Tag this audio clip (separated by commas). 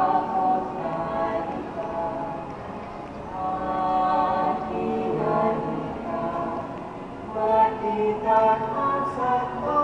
Female singing, Music, Male singing, Choir